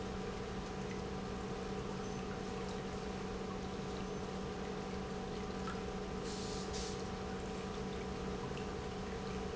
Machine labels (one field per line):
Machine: pump